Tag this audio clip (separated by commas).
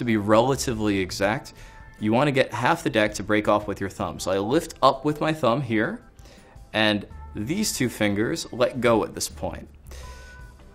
Speech